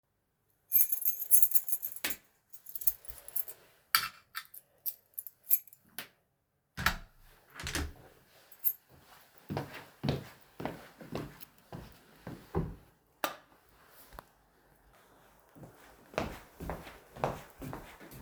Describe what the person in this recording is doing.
I took out my keys, unlocked the door, then I opened the door, entered my flat and turned on the light.